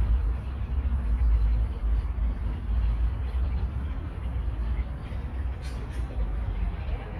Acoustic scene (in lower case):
park